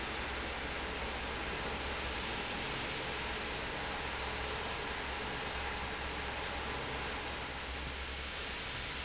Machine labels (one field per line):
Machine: fan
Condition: normal